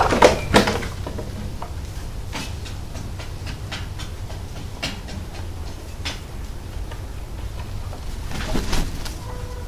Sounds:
bird
animal

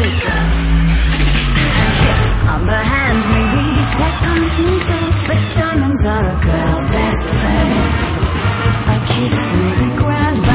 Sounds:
music
cheering
song

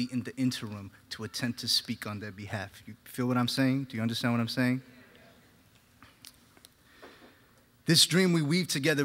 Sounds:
speech

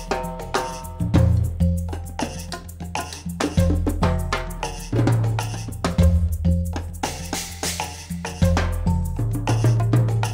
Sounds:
playing timbales

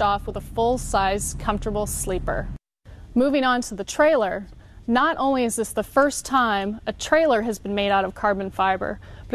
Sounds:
speech

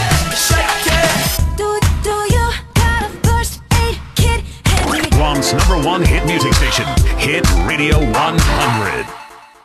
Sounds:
radio
speech
music

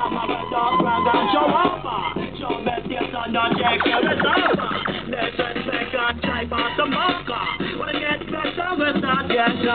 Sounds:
music

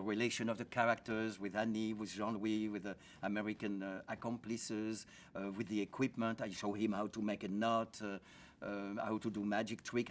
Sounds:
speech

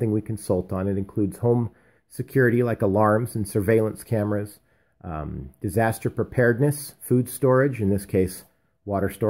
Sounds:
speech

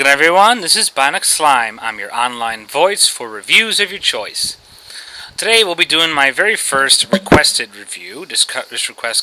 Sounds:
speech

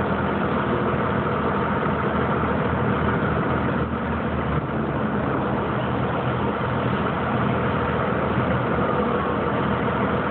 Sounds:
vehicle

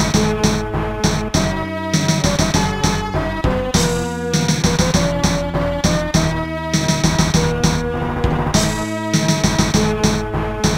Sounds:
music
video game music

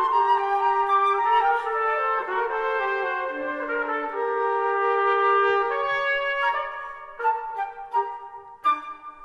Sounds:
playing cornet

